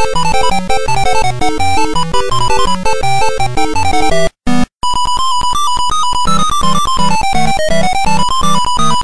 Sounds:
Music

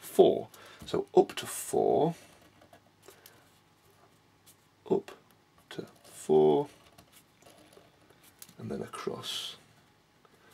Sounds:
Speech

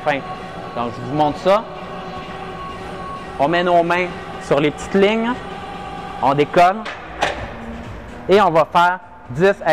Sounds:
Speech

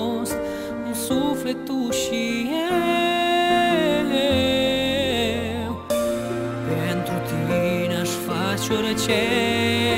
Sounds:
Music

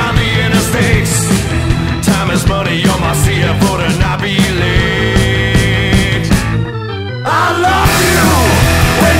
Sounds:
Music

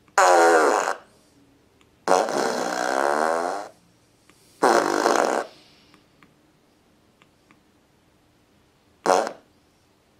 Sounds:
Fart, people farting

